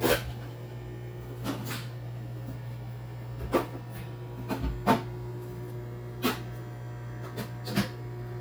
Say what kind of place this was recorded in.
kitchen